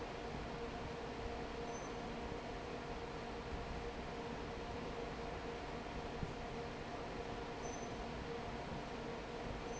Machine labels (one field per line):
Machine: fan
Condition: normal